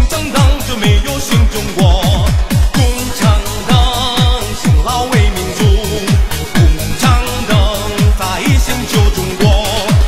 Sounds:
male singing
music

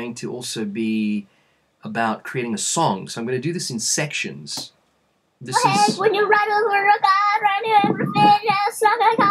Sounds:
speech

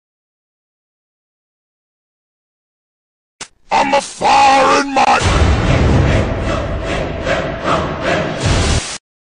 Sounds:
speech
music

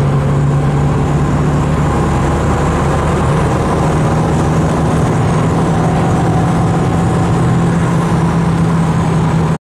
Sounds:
vehicle

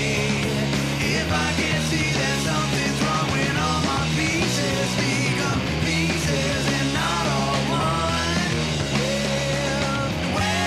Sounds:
music

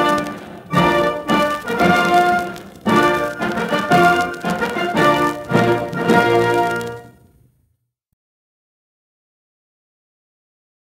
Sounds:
music

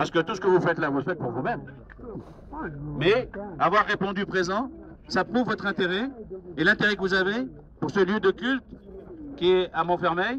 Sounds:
speech

